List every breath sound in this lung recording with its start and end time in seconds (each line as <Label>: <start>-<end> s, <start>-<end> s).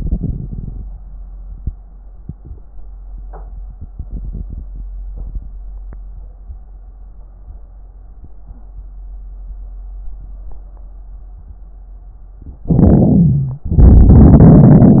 Inhalation: 12.68-13.69 s
Exhalation: 13.66-15.00 s
Wheeze: 13.18-13.66 s